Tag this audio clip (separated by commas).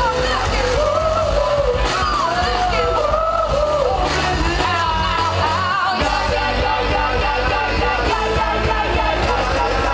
Bellow, Singing, Music